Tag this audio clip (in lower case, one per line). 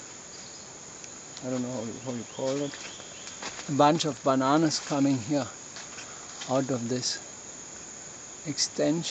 insect
speech